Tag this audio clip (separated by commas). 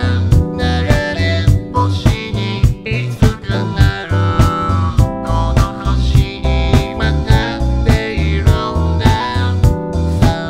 Music